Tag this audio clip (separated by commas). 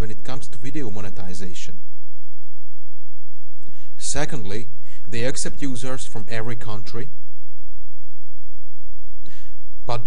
Speech